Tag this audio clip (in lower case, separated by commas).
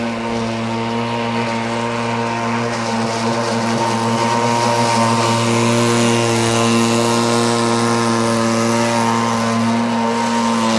speedboat acceleration, boat, speedboat